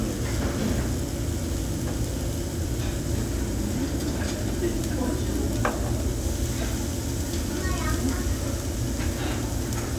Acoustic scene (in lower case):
restaurant